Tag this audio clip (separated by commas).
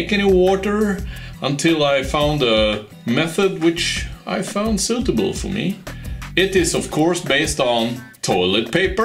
Music, Speech